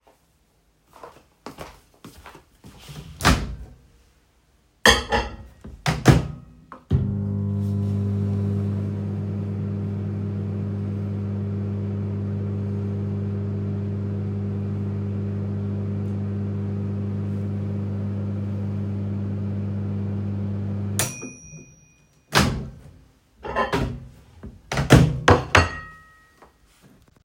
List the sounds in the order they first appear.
footsteps, microwave, cutlery and dishes